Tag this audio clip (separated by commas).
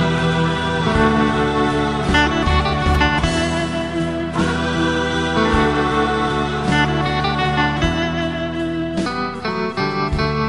Guitar, Musical instrument, inside a small room, Plucked string instrument, Music